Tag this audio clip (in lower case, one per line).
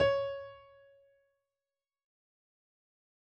piano
keyboard (musical)
musical instrument
music